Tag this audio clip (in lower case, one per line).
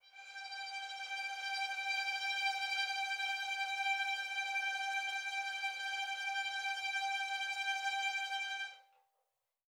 music
bowed string instrument
musical instrument